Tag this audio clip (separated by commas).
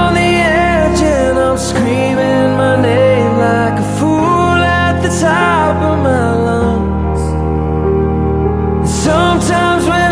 Music